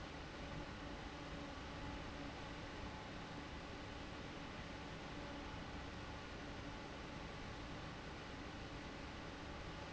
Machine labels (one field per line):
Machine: fan